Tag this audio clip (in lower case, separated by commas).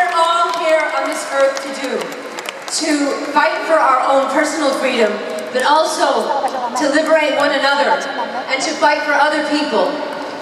woman speaking, speech